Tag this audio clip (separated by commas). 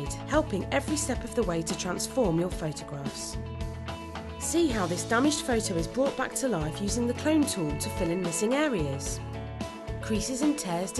Music, Speech